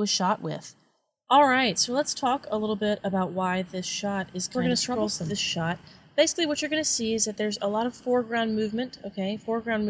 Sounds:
speech

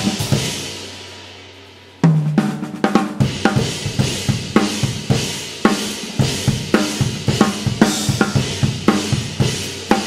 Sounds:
hi-hat
music

